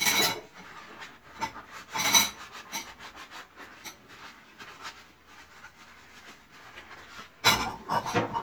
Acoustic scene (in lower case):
kitchen